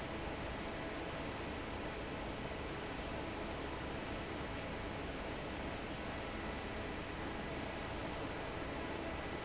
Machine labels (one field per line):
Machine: fan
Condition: normal